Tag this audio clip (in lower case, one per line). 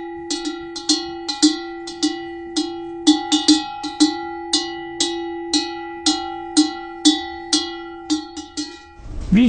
speech